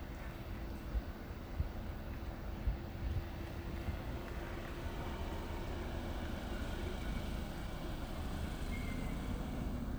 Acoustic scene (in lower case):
residential area